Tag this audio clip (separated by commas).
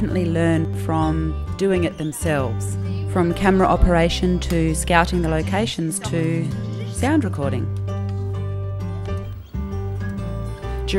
Speech, Music